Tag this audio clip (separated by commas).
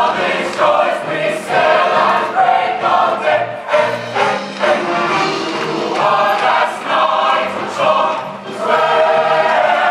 Music